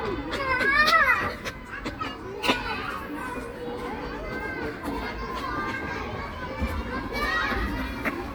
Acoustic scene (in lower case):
park